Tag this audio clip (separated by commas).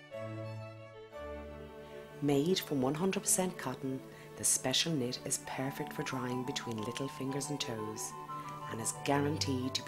Music, Speech